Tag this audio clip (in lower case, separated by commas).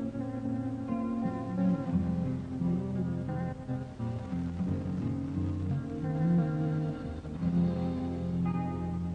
music, tender music